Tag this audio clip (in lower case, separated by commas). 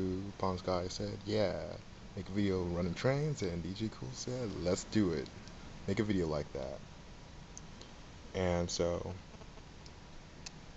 speech